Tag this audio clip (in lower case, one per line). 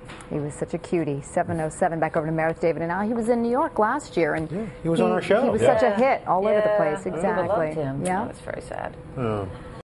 speech